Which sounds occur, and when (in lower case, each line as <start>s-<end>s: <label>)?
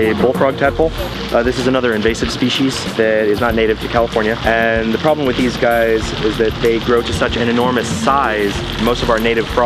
0.0s-0.8s: man speaking
0.0s-9.6s: music
0.0s-9.6s: water
1.3s-2.7s: man speaking
2.9s-5.9s: man speaking
6.1s-9.6s: man speaking